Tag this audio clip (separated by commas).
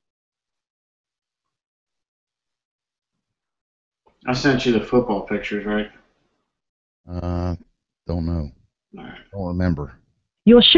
Speech